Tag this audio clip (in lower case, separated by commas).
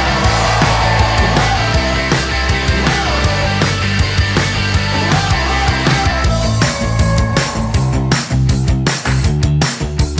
rock and roll, music